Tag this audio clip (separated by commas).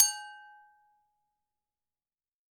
Glass